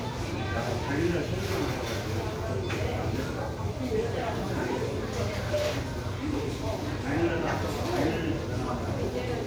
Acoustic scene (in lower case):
crowded indoor space